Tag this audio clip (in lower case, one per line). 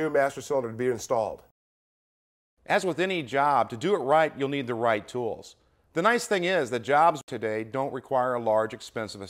speech